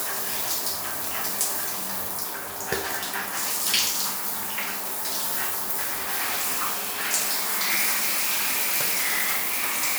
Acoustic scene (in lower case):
restroom